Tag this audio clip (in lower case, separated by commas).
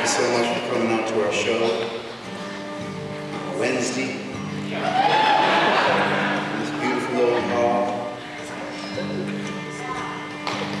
speech, music